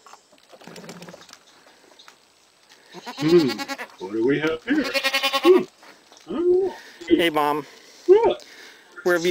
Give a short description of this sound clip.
Footsteps and sheep bleat then people speak